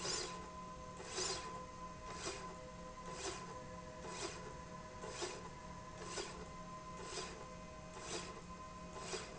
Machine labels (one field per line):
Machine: slide rail